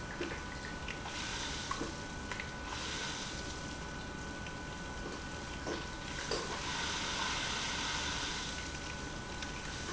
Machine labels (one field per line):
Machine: pump